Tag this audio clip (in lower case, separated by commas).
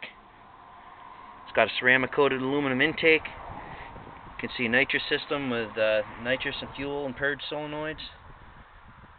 speech